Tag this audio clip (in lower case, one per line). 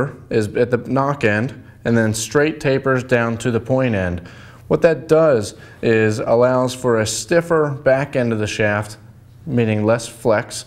speech